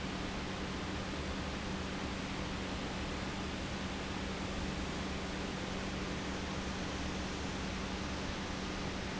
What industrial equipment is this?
pump